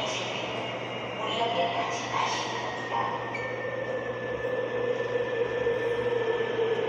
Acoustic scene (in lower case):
subway station